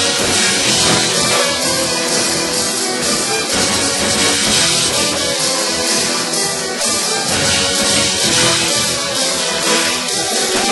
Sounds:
Music

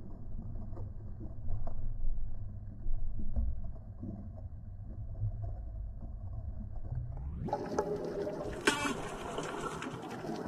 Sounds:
underwater bubbling

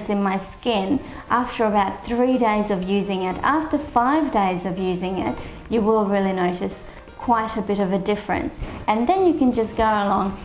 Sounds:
Music, Speech

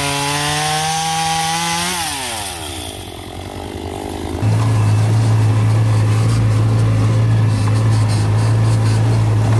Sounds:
Power tool, Tools

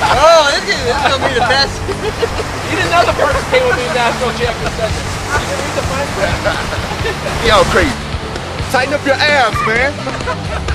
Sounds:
outside, rural or natural, Music, Speech

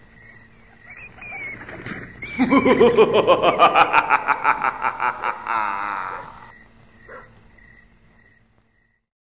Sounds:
Yip, Bow-wow, pets, Dog, Animal

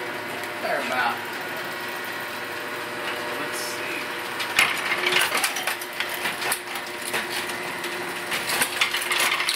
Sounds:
Speech, inside a large room or hall

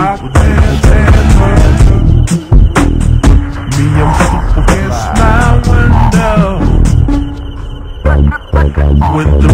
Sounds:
Music

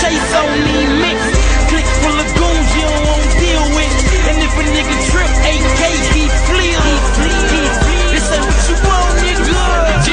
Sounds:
Music

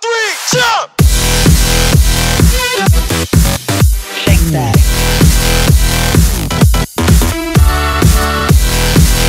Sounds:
Music

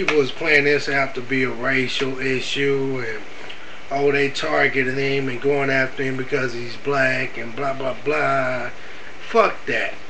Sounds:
Speech

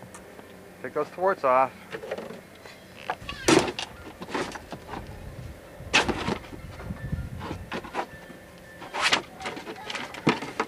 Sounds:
Boat, Vehicle, Music, Speech

